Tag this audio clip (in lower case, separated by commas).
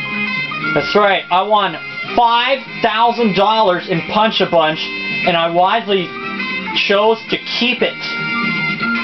speech, music